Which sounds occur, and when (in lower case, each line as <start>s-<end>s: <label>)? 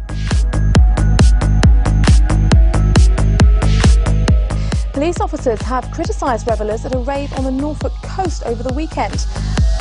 0.0s-9.8s: music
4.5s-4.8s: breathing
4.9s-9.2s: female speech